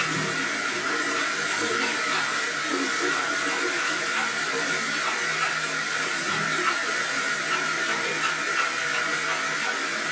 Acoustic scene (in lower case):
restroom